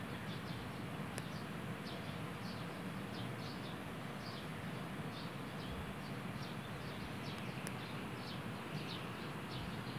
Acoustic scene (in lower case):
park